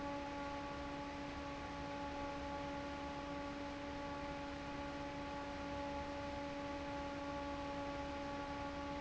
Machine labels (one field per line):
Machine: fan